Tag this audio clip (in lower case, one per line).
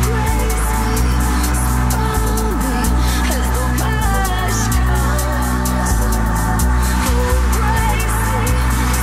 music